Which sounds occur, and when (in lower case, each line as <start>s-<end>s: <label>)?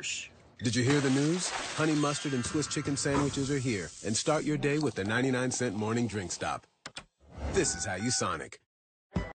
0.0s-0.3s: human voice
0.0s-0.6s: mechanisms
0.6s-1.6s: male speech
0.9s-1.9s: splatter
1.8s-3.9s: male speech
1.9s-3.1s: chime
3.0s-3.2s: sound effect
3.1s-4.6s: gurgling
4.1s-6.7s: male speech
4.7s-6.6s: slurp
4.8s-4.9s: tick
6.6s-7.0s: reverberation
6.9s-7.1s: generic impact sounds
7.2s-7.9s: sound effect
7.4s-8.6s: male speech
7.6s-8.3s: bleep
9.1s-9.3s: generic impact sounds